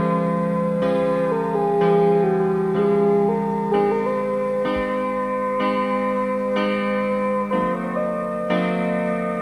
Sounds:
music

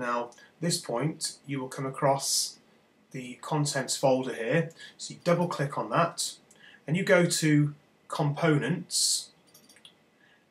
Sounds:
speech

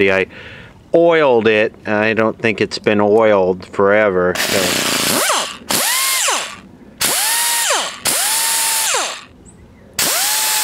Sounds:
speech
power tool

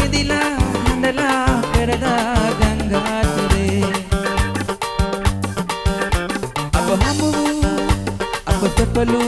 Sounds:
music

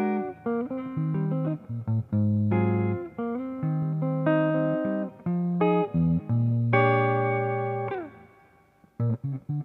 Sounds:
guitar
music
strum
musical instrument
acoustic guitar
plucked string instrument

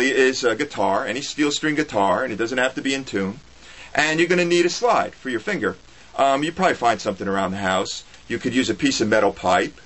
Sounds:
speech

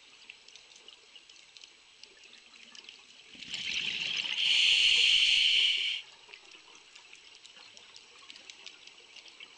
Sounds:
pour

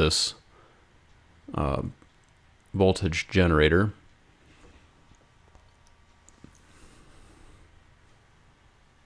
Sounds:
clicking
speech

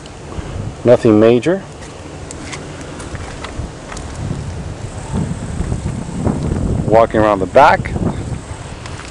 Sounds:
speech
wind

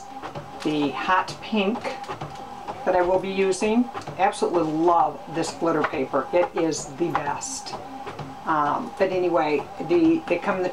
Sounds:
speech

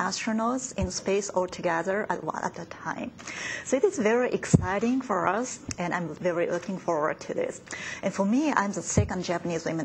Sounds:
woman speaking
speech

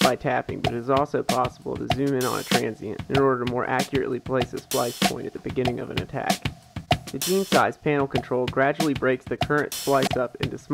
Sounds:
music

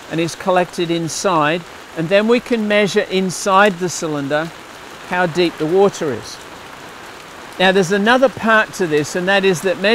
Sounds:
raindrop
rain
speech

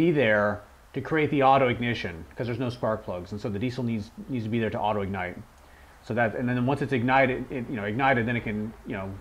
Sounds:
speech

